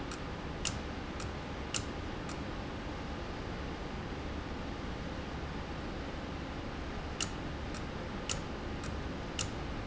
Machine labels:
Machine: valve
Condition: abnormal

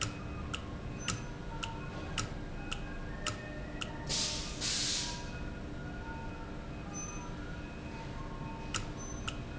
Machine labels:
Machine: valve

